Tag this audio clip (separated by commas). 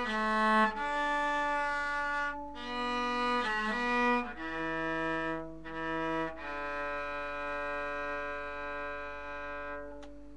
Music, Cello, Musical instrument